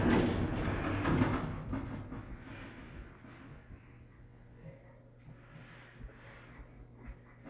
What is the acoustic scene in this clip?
elevator